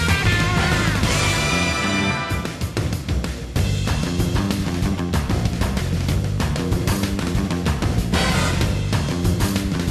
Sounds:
Music, Jingle (music), Video game music

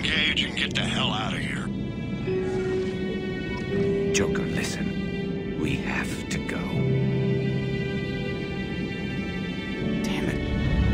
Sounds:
Music, Speech

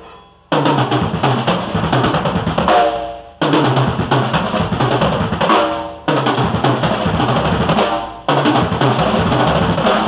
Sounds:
Musical instrument, Music, Snare drum, Drum, Drum kit, Percussion

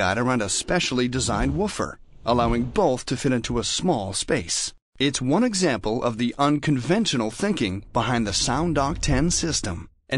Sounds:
Speech

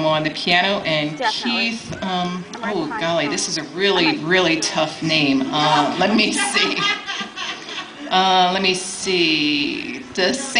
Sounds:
Speech

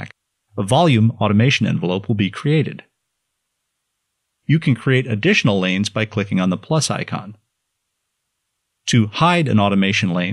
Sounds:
Speech

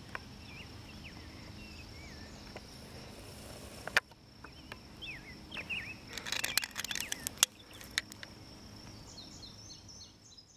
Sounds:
Animal

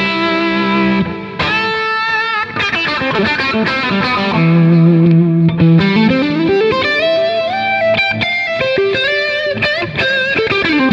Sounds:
Music

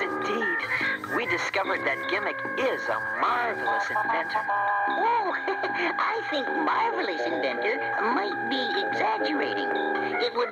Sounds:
Music, inside a small room, Speech

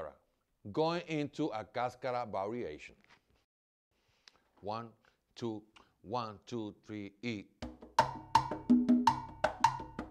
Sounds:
Music, Speech

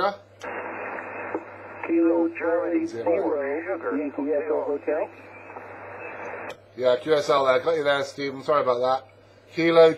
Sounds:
Radio, Speech

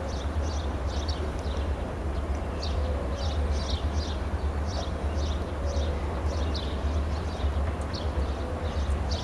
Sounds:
Train, outside, rural or natural, Vehicle

